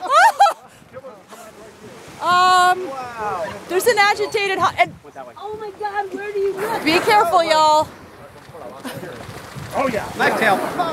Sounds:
speech
ocean

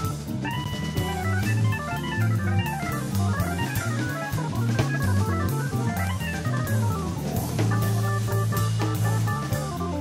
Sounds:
music
guitar
musical instrument

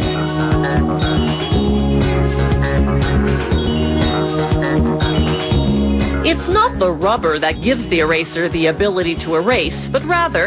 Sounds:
video game music
speech
music

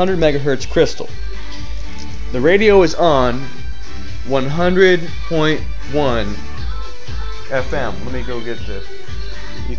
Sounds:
radio
music
speech

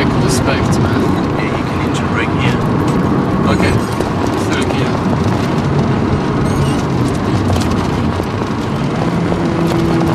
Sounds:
speech

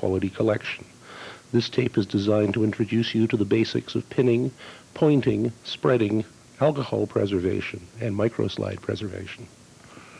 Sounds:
speech

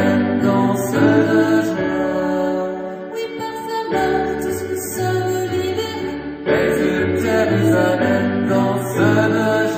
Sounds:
music

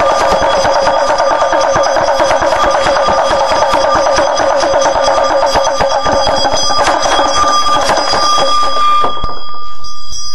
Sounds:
music

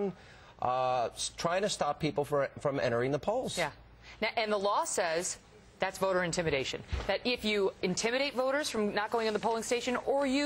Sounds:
speech

